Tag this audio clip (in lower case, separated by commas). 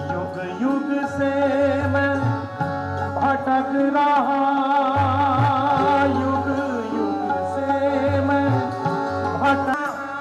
tabla, percussion, drum